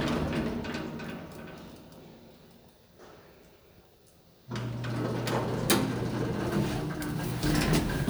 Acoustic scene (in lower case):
elevator